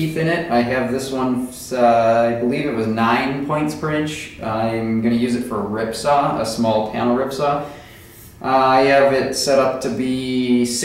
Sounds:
Speech

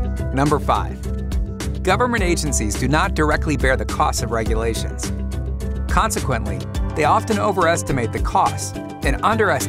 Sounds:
Speech, Music

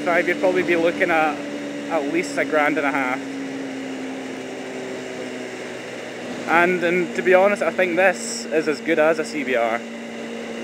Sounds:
Motorcycle, Vehicle, Speech

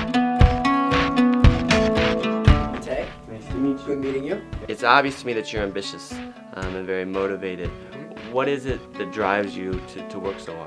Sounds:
Speech, Music

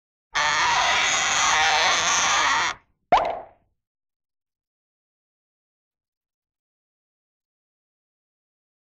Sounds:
Plop

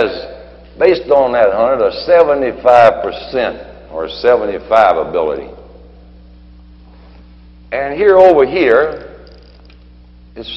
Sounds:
Narration, Speech, Male speech

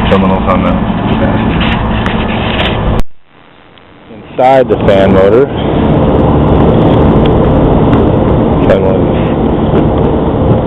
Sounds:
Speech

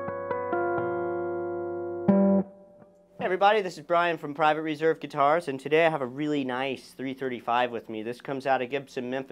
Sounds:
Electric guitar, Musical instrument, Strum, Music, Guitar, Plucked string instrument, Acoustic guitar, Speech

